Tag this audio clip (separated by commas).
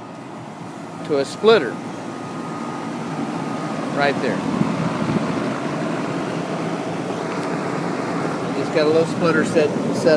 Speech, outside, urban or man-made